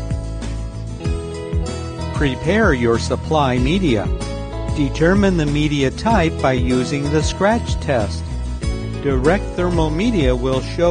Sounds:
music, speech

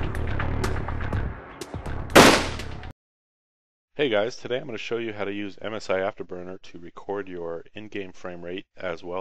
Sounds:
speech, music

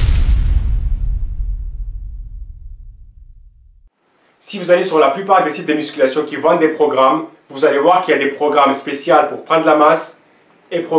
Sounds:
speech

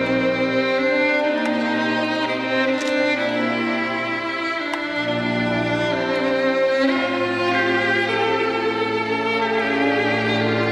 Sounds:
violin, music, musical instrument

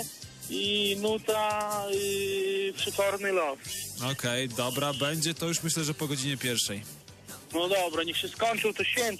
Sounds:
radio, music, speech

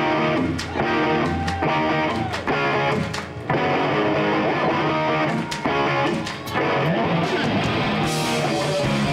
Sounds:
music

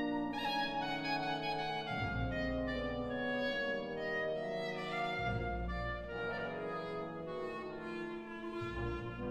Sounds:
playing clarinet

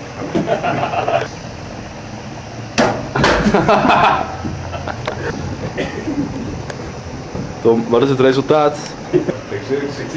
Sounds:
mechanical fan, speech

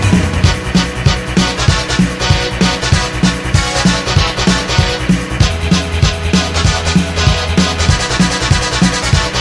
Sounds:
music, soundtrack music

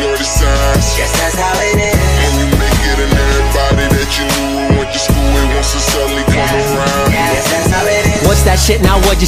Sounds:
music

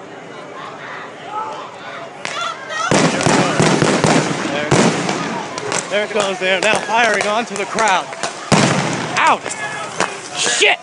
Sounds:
speech, sound effect

